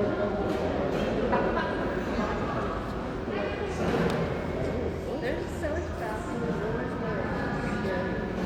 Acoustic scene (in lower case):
crowded indoor space